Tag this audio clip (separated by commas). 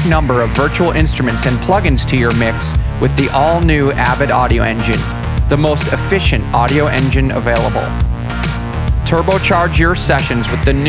Speech, Music